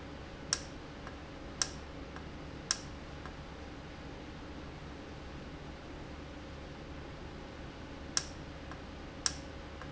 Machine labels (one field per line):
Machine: valve